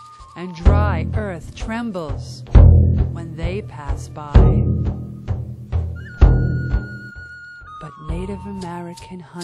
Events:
[0.00, 9.43] music
[0.32, 2.42] female speech
[3.09, 4.64] female speech
[7.79, 9.43] female speech
[8.59, 8.65] tick
[8.95, 9.00] tick
[9.38, 9.43] tick

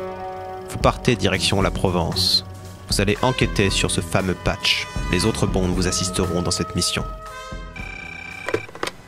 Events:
[0.00, 9.05] music
[0.63, 2.40] man speaking
[2.77, 4.81] man speaking
[5.09, 7.01] man speaking
[7.71, 8.65] telephone bell ringing
[8.44, 8.57] generic impact sounds
[8.71, 8.90] generic impact sounds

